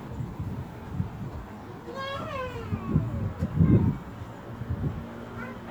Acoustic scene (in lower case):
residential area